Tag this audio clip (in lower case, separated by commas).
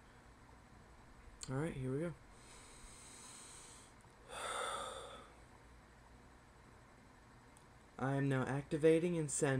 speech